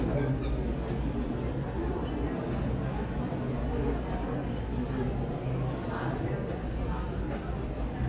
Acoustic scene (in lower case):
crowded indoor space